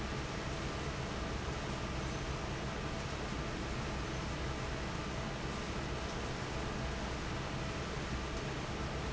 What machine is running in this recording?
fan